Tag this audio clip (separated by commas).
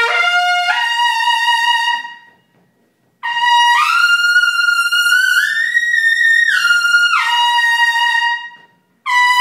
Brass instrument, Trumpet, playing trumpet